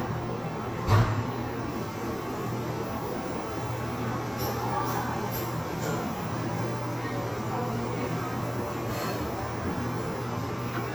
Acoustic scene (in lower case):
cafe